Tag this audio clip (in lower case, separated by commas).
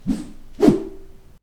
swish